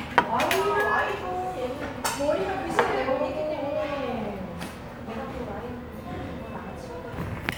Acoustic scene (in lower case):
restaurant